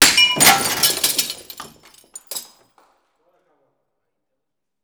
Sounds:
Shatter, Glass

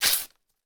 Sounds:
Tearing

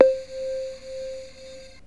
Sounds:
Music, Keyboard (musical), Musical instrument

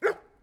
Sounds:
pets, Animal, Bark, Dog

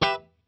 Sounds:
Guitar, Music, Musical instrument, Plucked string instrument

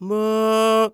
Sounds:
Male singing, Singing, Human voice

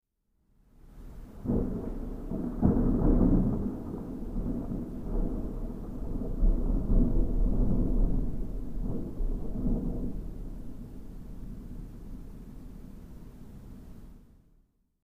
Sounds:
Thunderstorm, Thunder

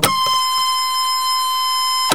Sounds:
Mechanisms, Printer

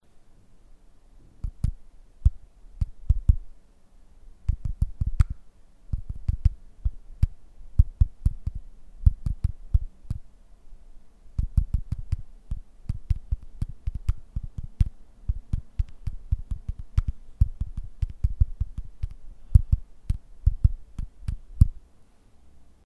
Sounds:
home sounds, Typing

